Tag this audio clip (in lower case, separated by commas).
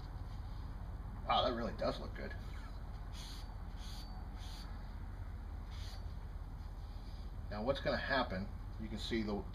speech